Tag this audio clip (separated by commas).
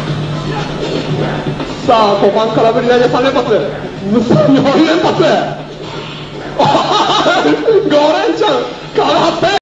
Music, Speech